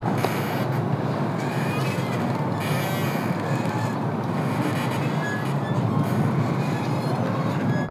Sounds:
ocean, water, wind

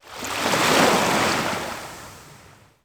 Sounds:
ocean, water, waves

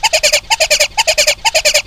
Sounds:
wild animals, animal, bird

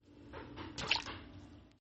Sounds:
liquid

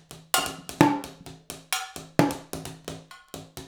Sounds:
musical instrument, percussion, music, drum kit

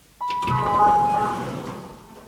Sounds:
door, sliding door, alarm, doorbell, home sounds

